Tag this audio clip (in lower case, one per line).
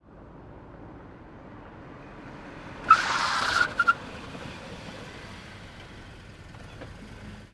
car
vehicle
motor vehicle (road)